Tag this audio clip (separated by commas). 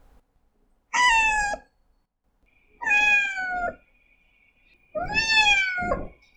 Animal, Cat, Meow, pets